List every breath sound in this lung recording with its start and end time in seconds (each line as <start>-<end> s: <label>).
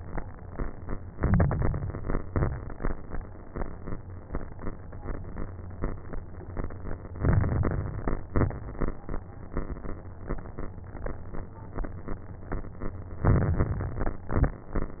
1.08-2.18 s: inhalation
1.08-2.18 s: crackles
2.24-2.85 s: exhalation
2.24-2.85 s: crackles
7.14-8.24 s: inhalation
7.14-8.24 s: crackles
8.28-8.89 s: exhalation
8.28-8.89 s: crackles
13.21-14.31 s: inhalation
13.21-14.31 s: crackles
14.33-14.93 s: exhalation
14.33-14.93 s: crackles